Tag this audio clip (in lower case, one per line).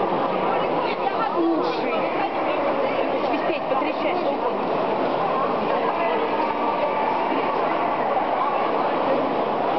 speech